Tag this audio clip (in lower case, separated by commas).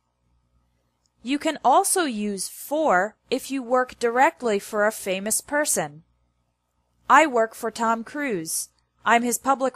speech